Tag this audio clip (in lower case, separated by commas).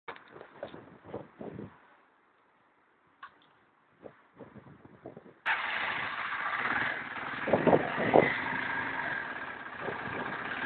vehicle, motorcycle, idling